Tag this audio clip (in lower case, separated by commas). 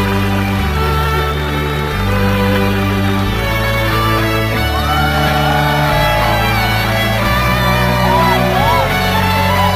musical instrument, music